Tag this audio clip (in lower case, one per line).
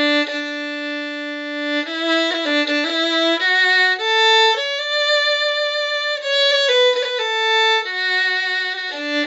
music
fiddle
musical instrument